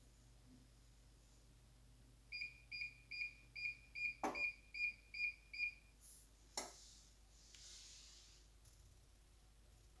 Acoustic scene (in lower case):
kitchen